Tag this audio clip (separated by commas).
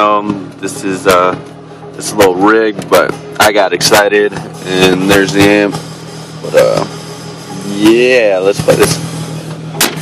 Music, Speech